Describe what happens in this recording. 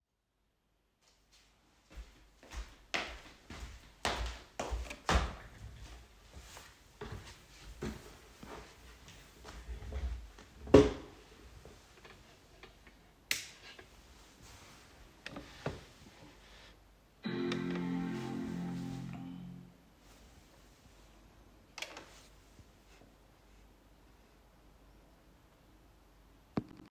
I walked to my desk and moved the desk chair backward. I sat down and opened the light switch on my desk. My Macbook gave an opening tone while I opened it, and then I switched the monitor connecting to my Macbook.